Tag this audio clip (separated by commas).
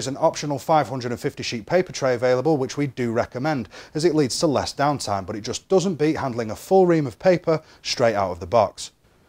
Speech